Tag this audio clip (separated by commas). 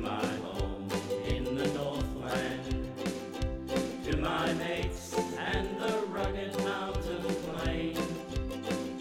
Ukulele, Music